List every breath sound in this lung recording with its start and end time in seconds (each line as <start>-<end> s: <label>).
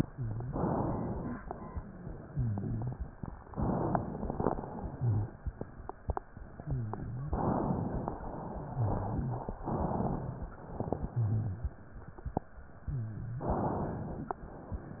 0.00-0.58 s: wheeze
0.00-1.37 s: inhalation
1.39-2.98 s: exhalation
1.71-2.98 s: wheeze
3.51-4.54 s: inhalation
4.50-5.54 s: exhalation
4.68-5.26 s: wheeze
6.64-7.36 s: wheeze
7.32-8.13 s: inhalation
8.19-9.58 s: exhalation
8.45-9.50 s: wheeze
9.64-10.51 s: inhalation
10.57-11.76 s: exhalation
10.89-11.76 s: wheeze
12.87-13.59 s: wheeze
13.45-14.36 s: inhalation